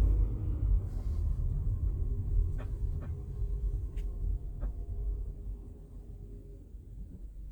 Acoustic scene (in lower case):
car